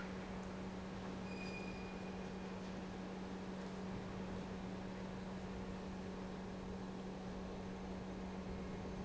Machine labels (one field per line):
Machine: pump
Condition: normal